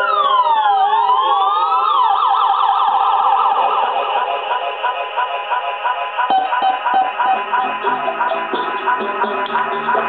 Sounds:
siren, emergency vehicle, police car (siren), ambulance (siren)

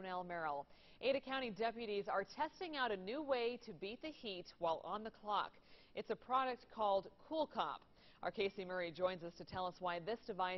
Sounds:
speech

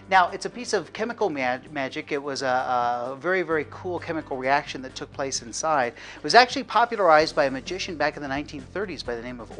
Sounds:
music, speech

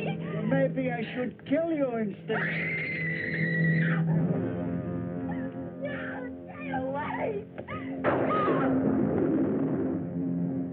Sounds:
speech, music, outside, rural or natural

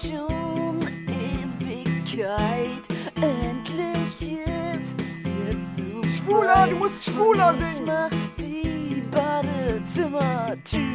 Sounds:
music, speech

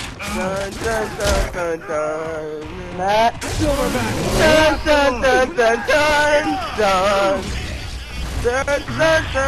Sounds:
speech

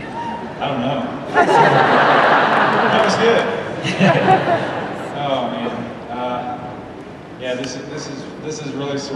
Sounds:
speech, man speaking, narration

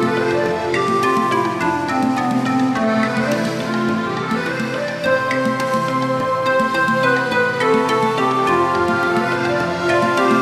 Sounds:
music

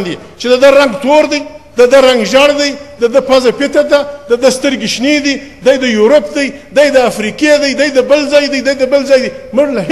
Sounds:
man speaking, speech

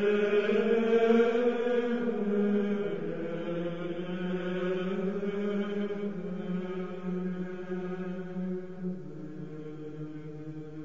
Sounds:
music, chant

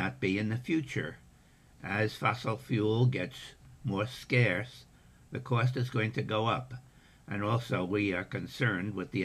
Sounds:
speech

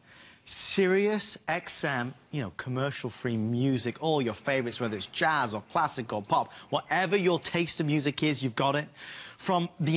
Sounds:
speech

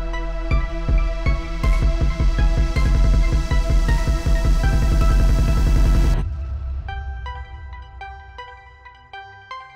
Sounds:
electronic music, music, dubstep

